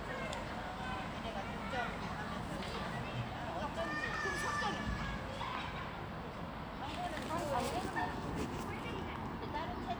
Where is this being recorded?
in a residential area